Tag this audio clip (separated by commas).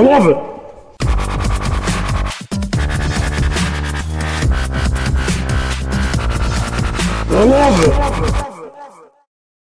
Music, Speech